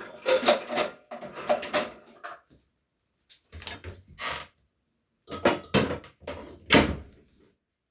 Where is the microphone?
in a kitchen